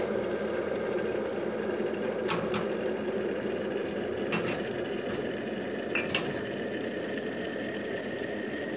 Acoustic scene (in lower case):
kitchen